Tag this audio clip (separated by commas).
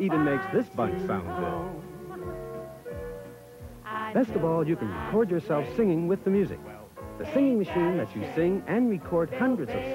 Speech, Music, Female singing